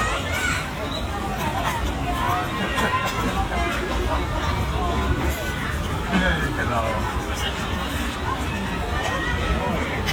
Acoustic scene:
park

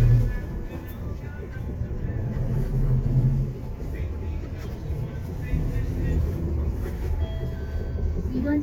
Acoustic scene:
bus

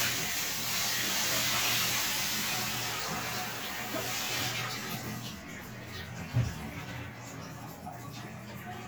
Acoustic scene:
restroom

